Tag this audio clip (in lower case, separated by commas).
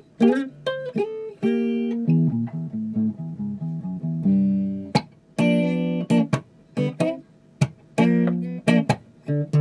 electric guitar, plucked string instrument, musical instrument, music, guitar, electronic tuner